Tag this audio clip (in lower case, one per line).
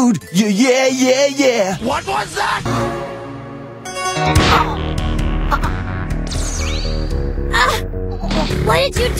speech
music